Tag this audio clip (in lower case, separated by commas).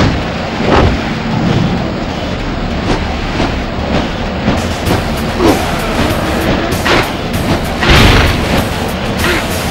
music